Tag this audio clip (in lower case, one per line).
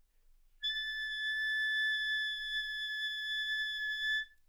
musical instrument
music
wind instrument